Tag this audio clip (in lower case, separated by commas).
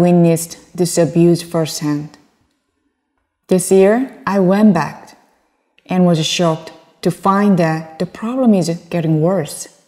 speech